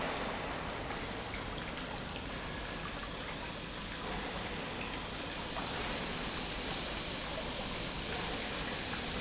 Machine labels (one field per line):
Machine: pump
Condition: normal